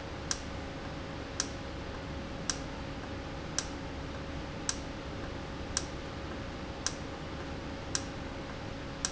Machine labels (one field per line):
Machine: valve